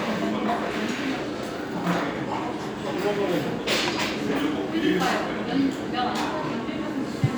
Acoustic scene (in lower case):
restaurant